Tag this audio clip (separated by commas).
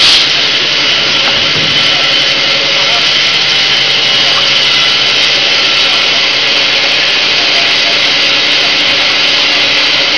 Tools, inside a large room or hall